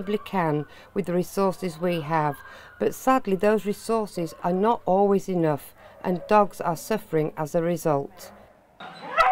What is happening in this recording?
Woman speaking and dog whimpering